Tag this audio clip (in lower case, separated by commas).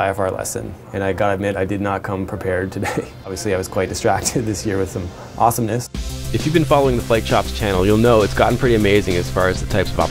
music, speech